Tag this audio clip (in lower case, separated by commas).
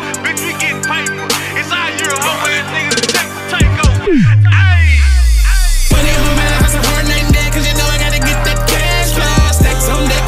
music, rhythm and blues